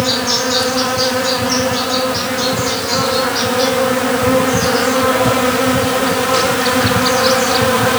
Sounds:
Insect, Animal, Wild animals

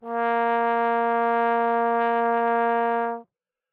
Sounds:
Brass instrument, Music, Musical instrument

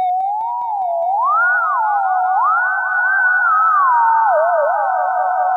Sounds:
Music, Musical instrument

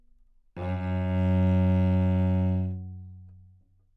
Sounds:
Musical instrument, Music, Bowed string instrument

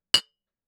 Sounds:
Chink, Glass

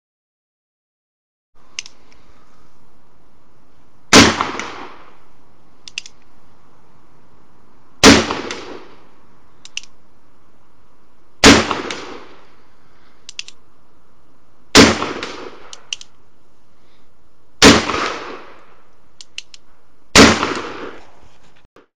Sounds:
gunfire, Explosion

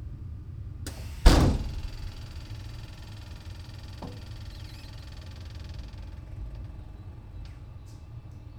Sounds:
Rail transport, Vehicle, Train

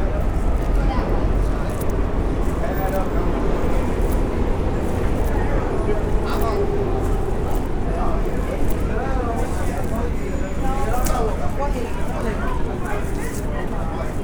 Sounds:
Subway, Rail transport, Vehicle

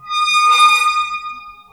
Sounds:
Squeak

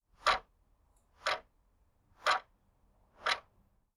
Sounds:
Tick-tock, Mechanisms, Clock

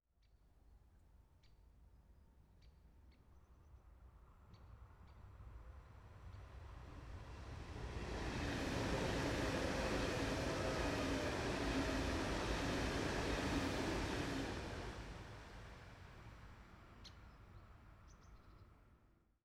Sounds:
Train, Vehicle, Rail transport

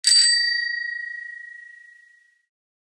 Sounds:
Alarm, Bell, Bicycle, Vehicle, Bicycle bell

